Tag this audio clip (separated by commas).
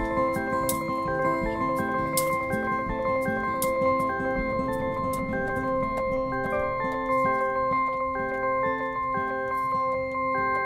Music